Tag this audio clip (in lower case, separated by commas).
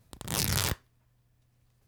tearing